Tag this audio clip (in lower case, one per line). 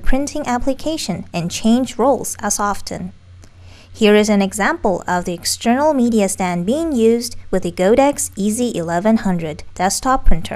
speech